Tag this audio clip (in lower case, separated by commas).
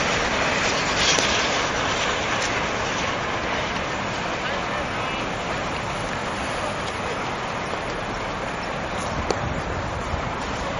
rail transport, speech, vehicle, train